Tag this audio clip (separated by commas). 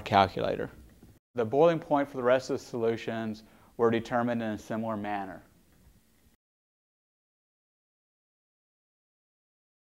Speech